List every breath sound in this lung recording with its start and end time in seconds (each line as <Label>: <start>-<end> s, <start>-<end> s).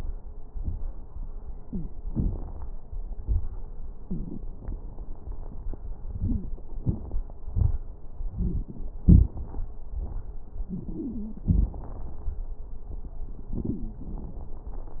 Inhalation: 2.05-2.74 s
Exhalation: 3.15-3.65 s
Wheeze: 1.59-1.93 s, 6.17-6.50 s, 10.69-11.43 s
Crackles: 2.05-2.74 s, 3.15-3.65 s